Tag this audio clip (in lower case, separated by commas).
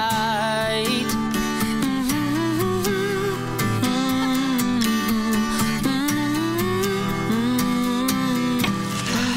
music, background music